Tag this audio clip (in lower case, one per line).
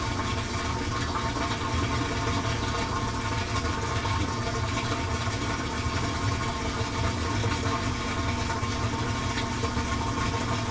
engine